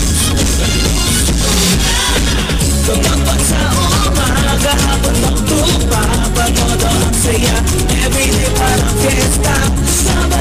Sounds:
music

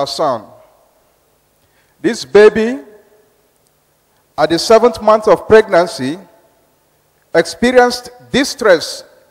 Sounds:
speech

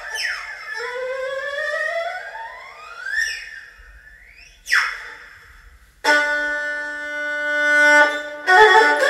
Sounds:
playing erhu

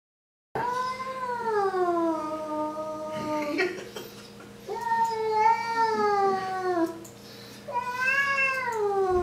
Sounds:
cat caterwauling

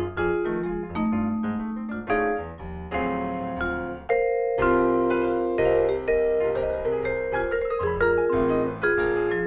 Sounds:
playing vibraphone

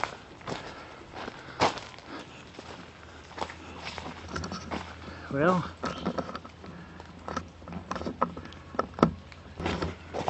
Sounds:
speech

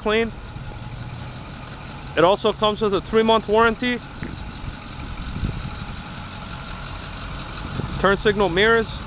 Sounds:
vehicle
car
speech

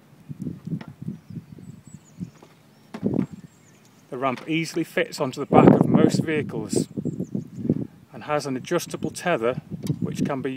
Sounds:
speech

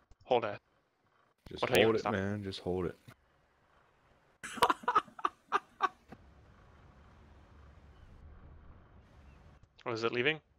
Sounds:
speech

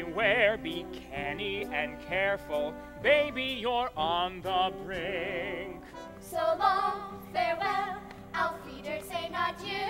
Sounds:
music

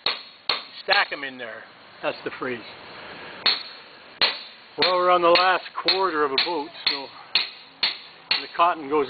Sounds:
speech

